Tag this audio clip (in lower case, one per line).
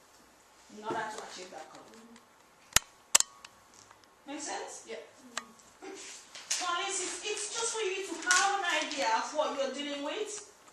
speech
inside a large room or hall